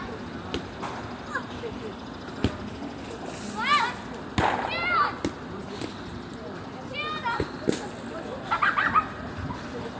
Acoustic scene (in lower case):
park